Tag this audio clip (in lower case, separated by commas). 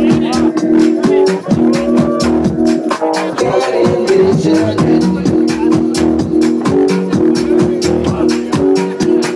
speech, music